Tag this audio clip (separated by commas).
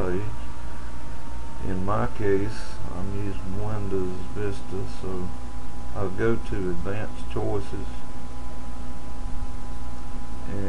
Speech